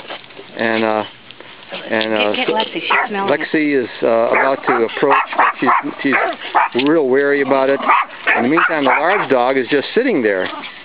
People are talking, a dog is barking